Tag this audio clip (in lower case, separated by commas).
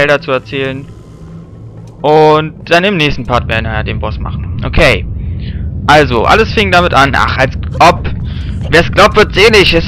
wind noise (microphone), wind